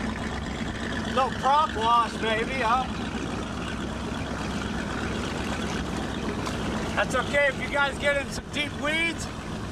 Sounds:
speedboat, Speech, Vehicle

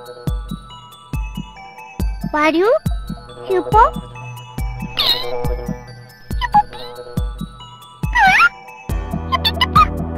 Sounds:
Music, Speech

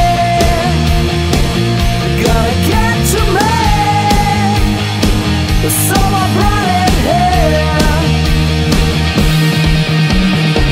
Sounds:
Progressive rock, Music

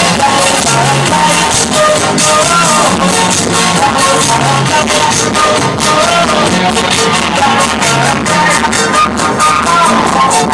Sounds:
Music, House music

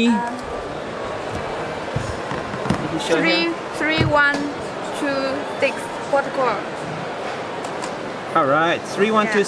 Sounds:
Speech

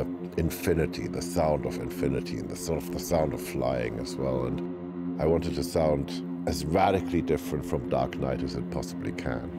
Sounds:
Speech

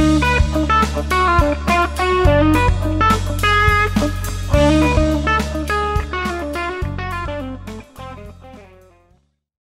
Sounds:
Strum, Music, Acoustic guitar, Plucked string instrument, Guitar, Musical instrument

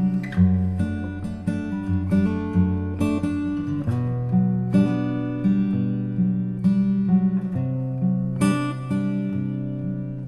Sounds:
Music, Strum, playing acoustic guitar, Guitar, Acoustic guitar, Musical instrument, Plucked string instrument

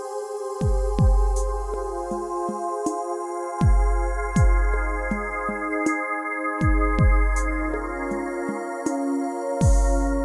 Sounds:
Music

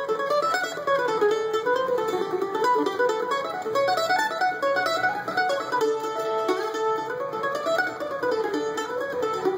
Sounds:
Mandolin, Music

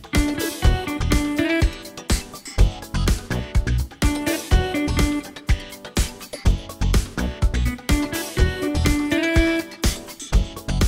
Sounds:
Music

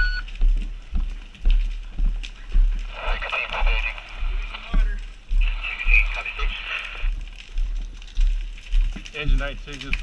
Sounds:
Speech

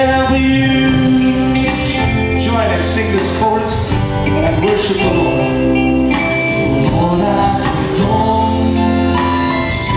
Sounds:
Music

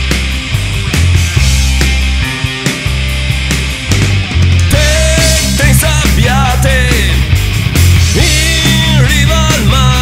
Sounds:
Music

